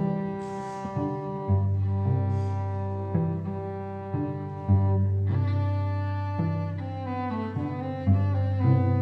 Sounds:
music, musical instrument, cello

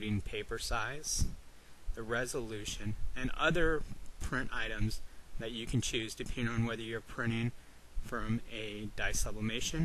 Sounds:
speech

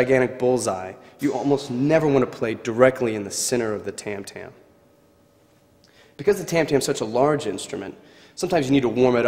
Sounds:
speech

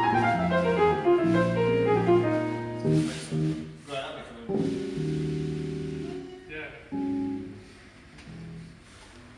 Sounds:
tender music, music, speech

